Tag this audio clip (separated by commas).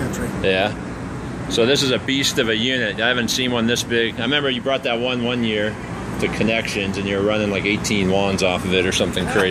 Speech